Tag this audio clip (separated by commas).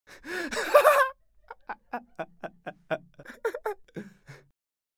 Laughter, Human voice